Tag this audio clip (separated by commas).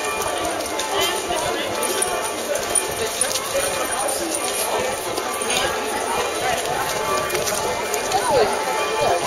Speech